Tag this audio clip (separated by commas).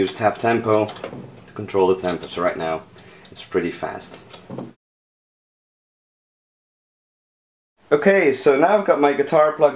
Speech